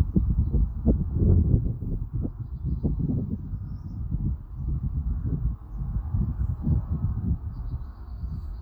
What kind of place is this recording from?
residential area